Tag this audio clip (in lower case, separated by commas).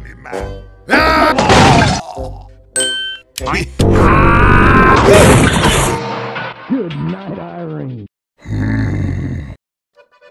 sound effect, smash